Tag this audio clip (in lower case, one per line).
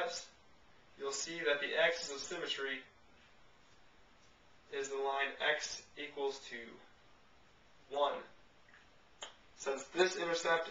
speech
inside a large room or hall